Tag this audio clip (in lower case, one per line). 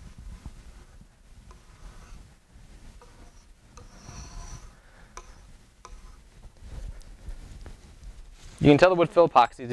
speech